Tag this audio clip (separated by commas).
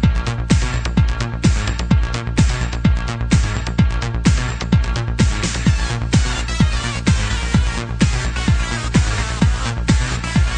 Electronic music, Music, Techno, Trance music